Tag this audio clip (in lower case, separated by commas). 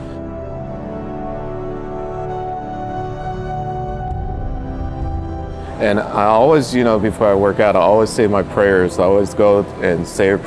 music, speech